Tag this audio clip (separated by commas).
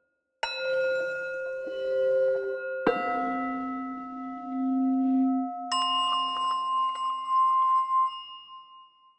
Singing bowl